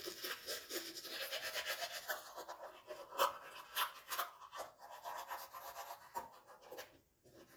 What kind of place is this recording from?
restroom